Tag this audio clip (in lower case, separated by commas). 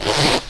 domestic sounds, zipper (clothing)